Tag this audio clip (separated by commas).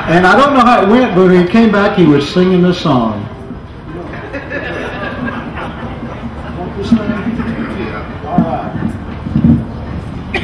Speech